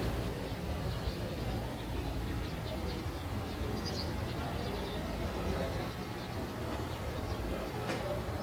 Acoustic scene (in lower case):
residential area